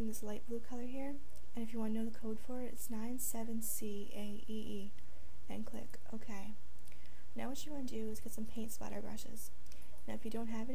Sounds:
Speech

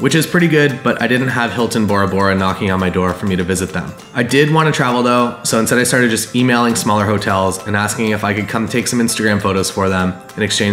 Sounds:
Music, Speech

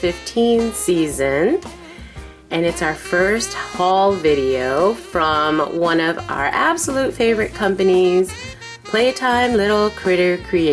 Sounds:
Speech, Music

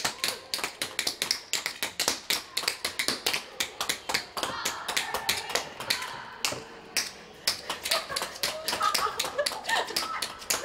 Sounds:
tap dancing

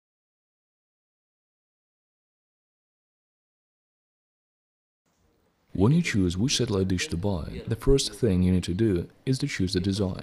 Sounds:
Speech

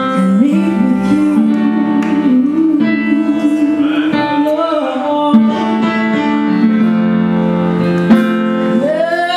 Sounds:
Music

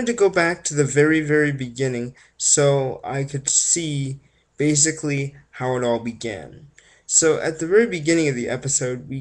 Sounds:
Speech

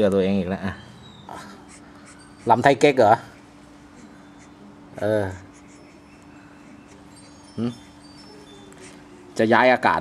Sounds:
Speech

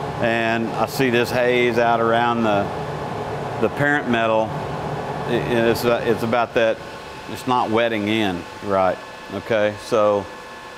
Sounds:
arc welding

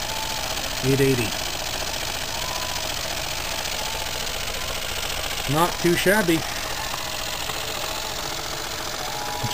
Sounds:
Engine, Speech

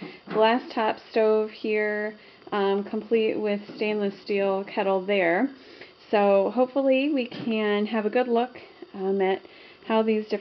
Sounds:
Speech

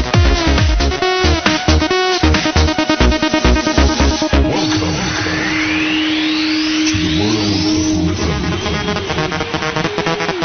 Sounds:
Music, House music

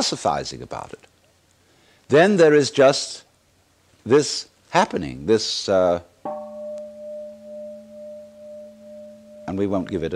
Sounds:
Speech, Music

